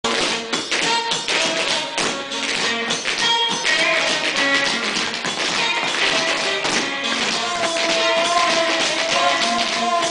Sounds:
Music, Tap

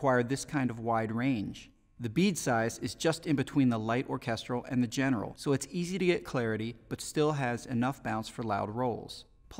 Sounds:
Speech

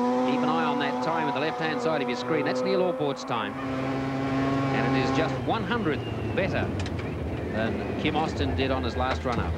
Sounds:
Speech

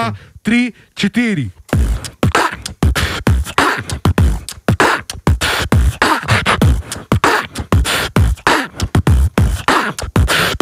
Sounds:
beat boxing

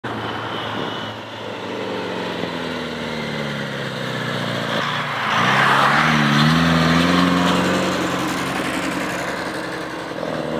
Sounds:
Truck, Vehicle, Motor vehicle (road), outside, rural or natural

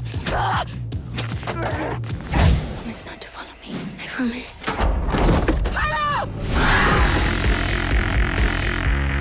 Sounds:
Speech, Music

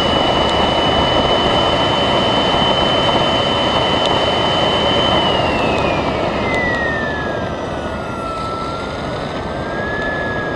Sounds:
Engine

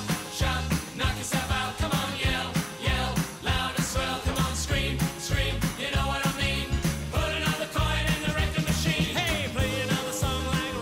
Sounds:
Music

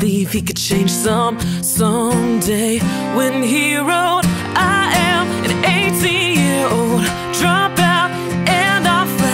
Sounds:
Music, Rhythm and blues

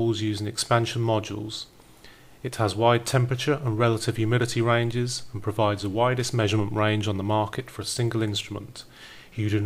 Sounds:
Speech

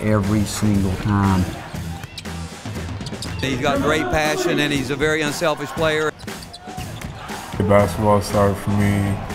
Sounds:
Speech, Male speech, Music

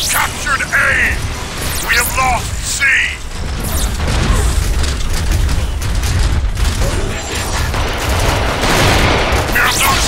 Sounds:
Speech

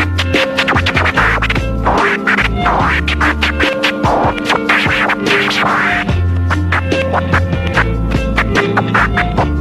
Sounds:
Music

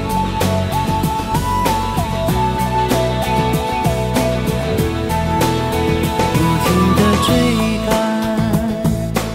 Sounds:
Music

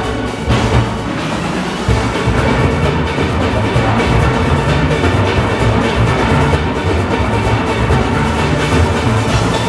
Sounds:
playing steelpan

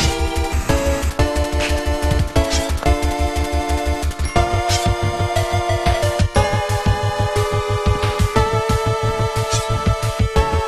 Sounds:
Video game music, Music

